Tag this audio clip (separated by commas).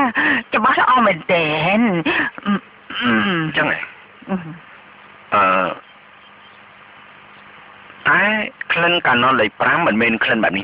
Speech